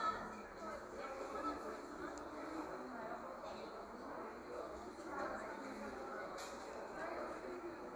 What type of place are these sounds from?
cafe